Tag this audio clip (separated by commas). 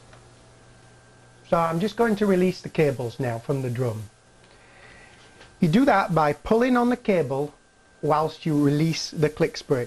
Speech